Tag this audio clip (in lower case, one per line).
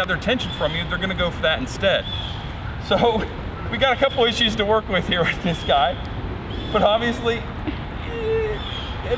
speech